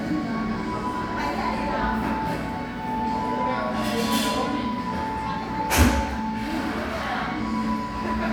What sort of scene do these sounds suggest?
crowded indoor space